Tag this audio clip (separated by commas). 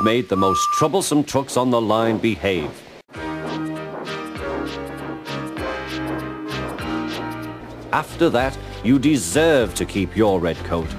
Speech, monologue, Music